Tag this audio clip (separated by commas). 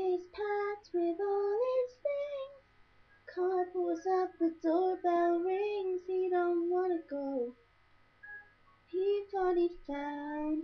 Female singing